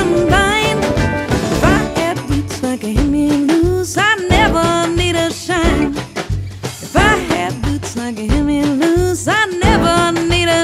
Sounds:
soul music, music

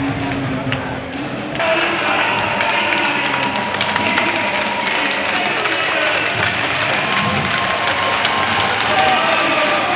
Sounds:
playing hockey

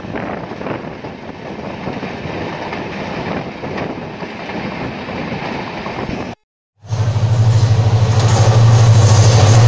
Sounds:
train whistling

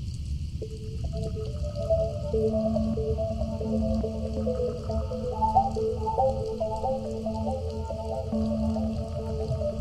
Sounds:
music

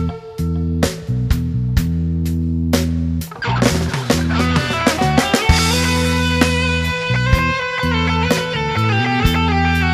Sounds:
progressive rock, rock music, music, jazz

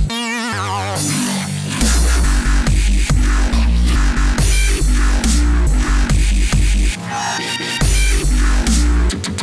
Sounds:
electronic music, music, dubstep

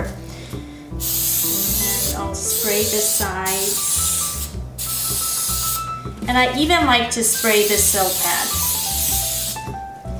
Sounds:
speech, music

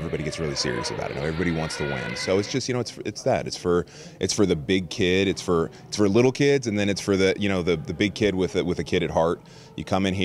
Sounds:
speech

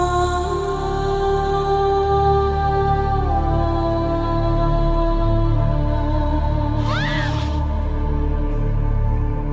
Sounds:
speech, music

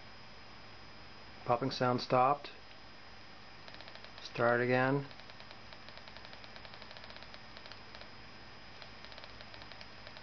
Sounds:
speech

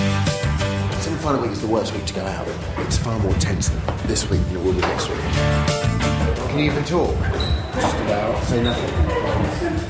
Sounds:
music, speech

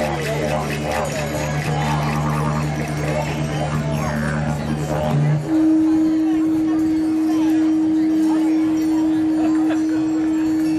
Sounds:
speech, didgeridoo, music

